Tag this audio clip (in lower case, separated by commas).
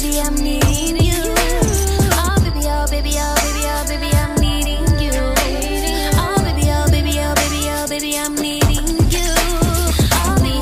inside a large room or hall, music